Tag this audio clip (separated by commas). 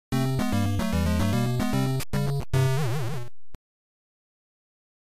Music, Video game music